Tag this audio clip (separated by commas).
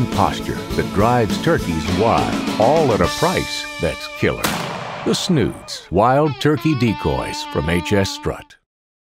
Music, Speech